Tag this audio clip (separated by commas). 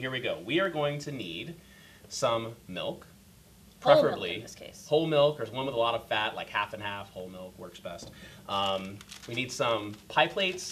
Speech